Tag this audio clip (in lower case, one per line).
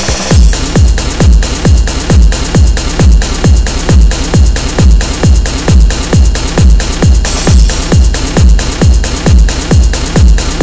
music
techno